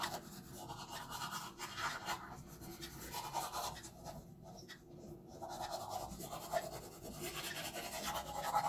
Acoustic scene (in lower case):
restroom